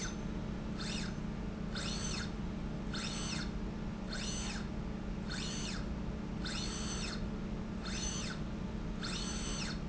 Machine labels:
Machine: slide rail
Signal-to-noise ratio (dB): -6 dB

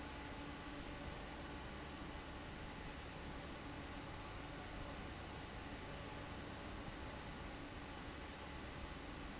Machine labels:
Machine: fan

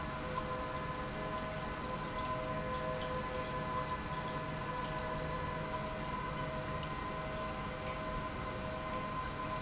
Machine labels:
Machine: pump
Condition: normal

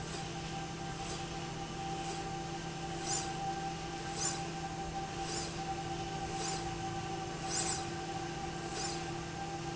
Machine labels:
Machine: slide rail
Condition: normal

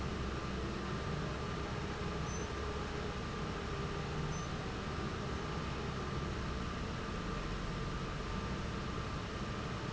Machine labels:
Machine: fan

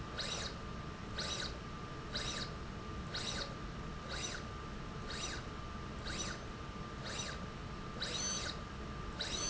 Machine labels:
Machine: slide rail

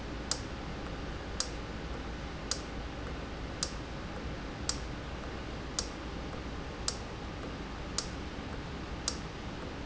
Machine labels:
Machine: valve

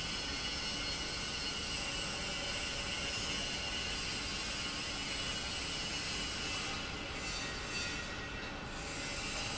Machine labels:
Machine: pump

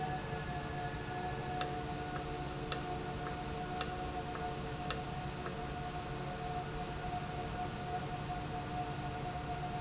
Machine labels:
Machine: valve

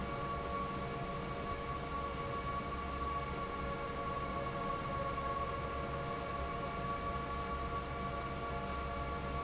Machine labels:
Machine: fan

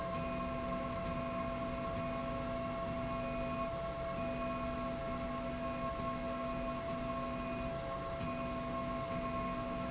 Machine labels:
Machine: slide rail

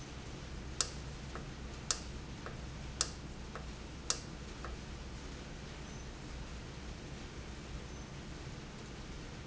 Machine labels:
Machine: valve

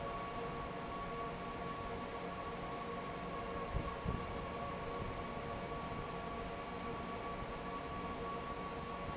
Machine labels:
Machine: fan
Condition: normal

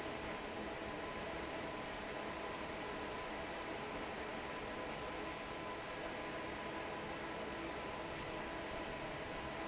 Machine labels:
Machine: fan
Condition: normal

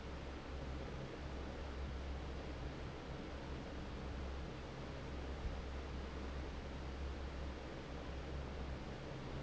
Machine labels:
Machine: fan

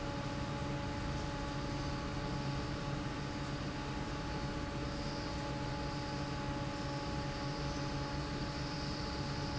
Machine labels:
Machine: fan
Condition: normal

